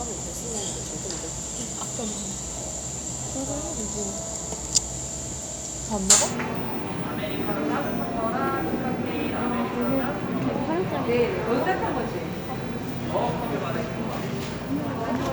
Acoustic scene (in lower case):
cafe